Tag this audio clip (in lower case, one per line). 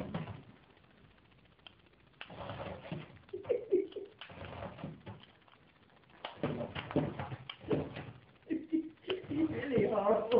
speech